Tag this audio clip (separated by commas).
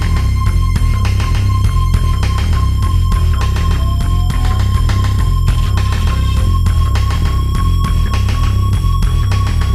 Music